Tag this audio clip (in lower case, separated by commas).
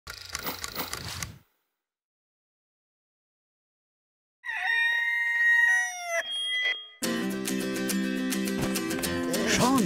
music, speech